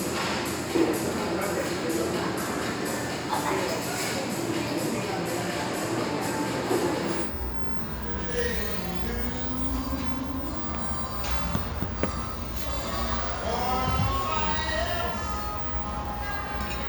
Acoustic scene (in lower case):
restaurant